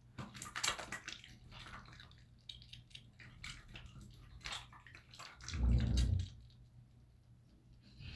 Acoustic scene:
restroom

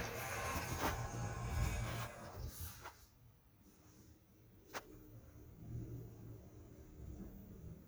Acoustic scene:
elevator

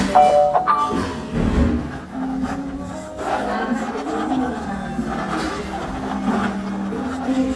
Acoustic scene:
cafe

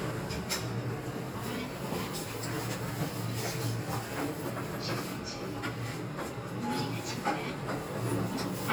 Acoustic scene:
elevator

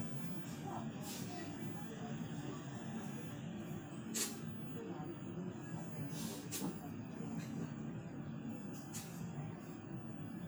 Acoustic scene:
bus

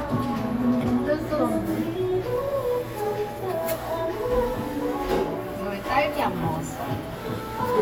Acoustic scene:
cafe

